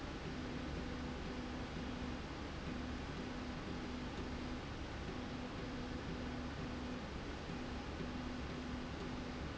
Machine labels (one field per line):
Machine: slide rail